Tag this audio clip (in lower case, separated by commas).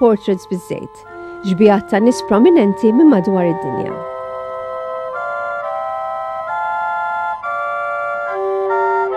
speech, music